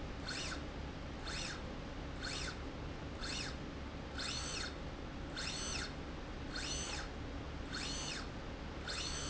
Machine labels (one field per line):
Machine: slide rail